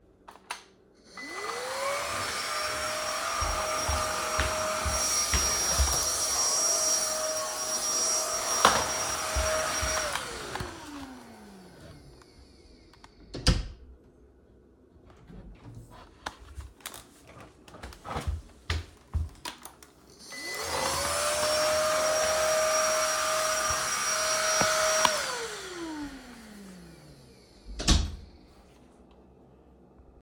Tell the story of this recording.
I turned on the vacuum, i vacuumed the living room, turned off the vacuum, walked to the bedroom, turned on the vacuum again, vacuumed, turned it off again and shut the door behind me.